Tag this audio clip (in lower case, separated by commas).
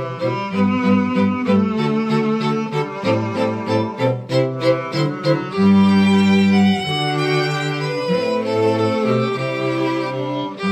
cello, bowed string instrument, music